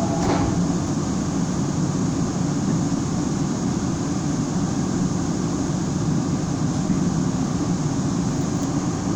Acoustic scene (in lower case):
subway train